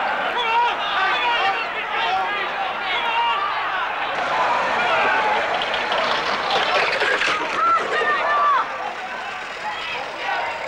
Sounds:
speech

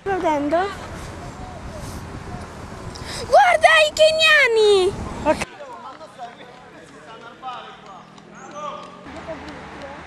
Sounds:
speech, run, outside, urban or man-made

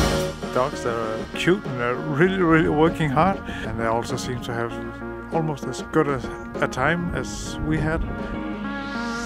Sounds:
speech, music

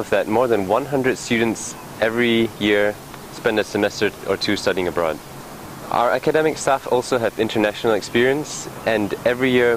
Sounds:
speech, outside, urban or man-made

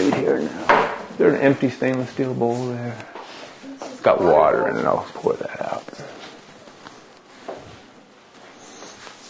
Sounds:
inside a small room, speech

